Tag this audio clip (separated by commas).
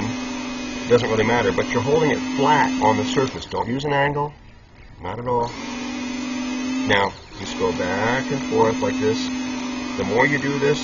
sharpen knife